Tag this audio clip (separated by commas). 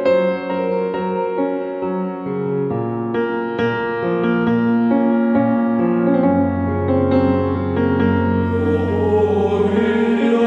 Music, Background music